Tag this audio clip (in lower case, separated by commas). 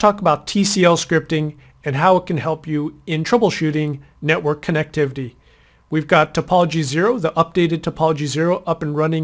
speech